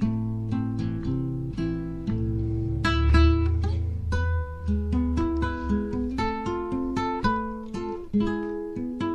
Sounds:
musical instrument, strum, acoustic guitar, music, plucked string instrument, guitar, playing acoustic guitar

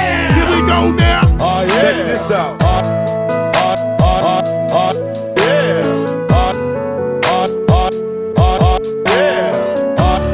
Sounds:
music

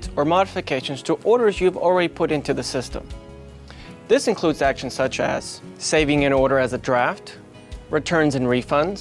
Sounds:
music, speech

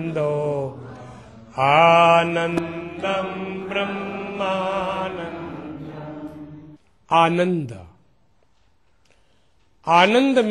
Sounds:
speech, mantra, chant

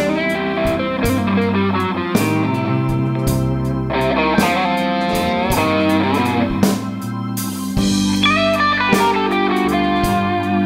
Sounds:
music

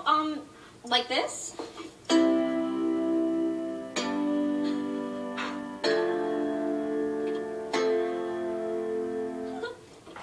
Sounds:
music, speech

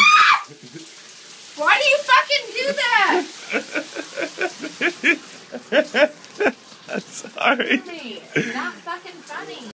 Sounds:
speech, stream

